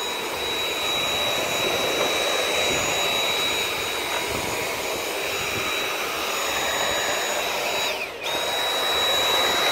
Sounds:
vacuum cleaner cleaning floors

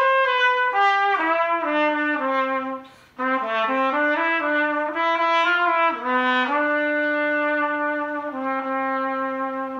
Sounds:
playing cornet

